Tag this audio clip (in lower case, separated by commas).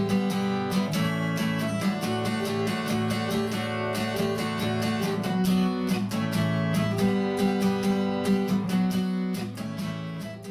musical instrument, acoustic guitar, plucked string instrument, music, guitar